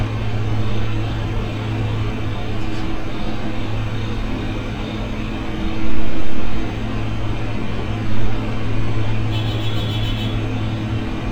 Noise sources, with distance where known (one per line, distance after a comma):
car horn